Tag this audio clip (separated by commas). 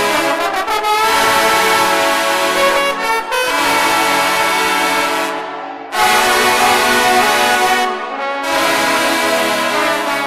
Music, Brass instrument, playing trombone, Trombone